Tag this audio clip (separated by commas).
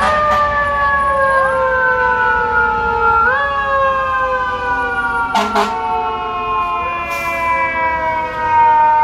fire truck siren